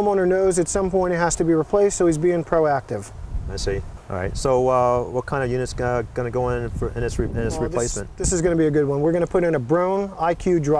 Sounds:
speech

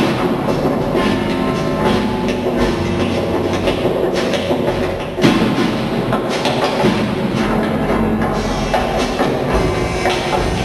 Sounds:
music, thump

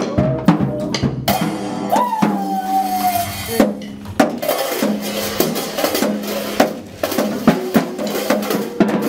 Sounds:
music

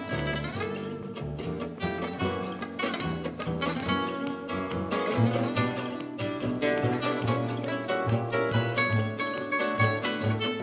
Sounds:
music, acoustic guitar, musical instrument, playing acoustic guitar, guitar, plucked string instrument

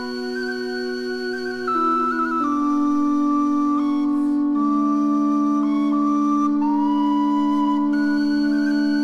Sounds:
music

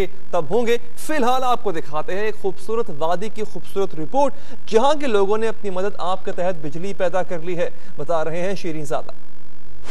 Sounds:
speech, waterfall

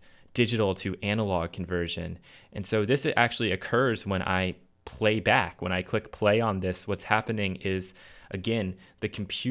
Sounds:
speech

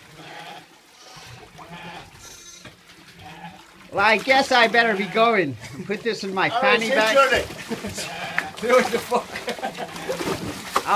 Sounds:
water

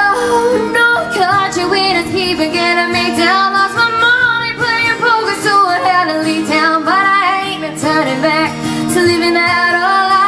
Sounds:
inside a large room or hall, music, guitar, singing

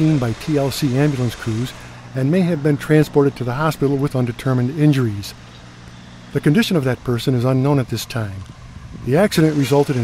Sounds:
speech, vehicle

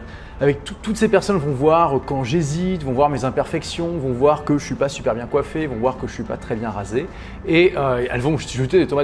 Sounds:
speech, music

